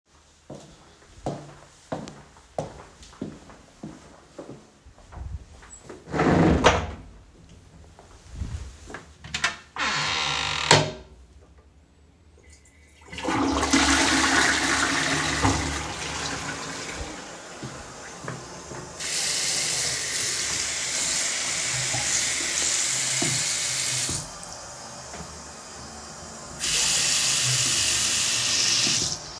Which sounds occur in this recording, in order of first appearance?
footsteps, door, toilet flushing, running water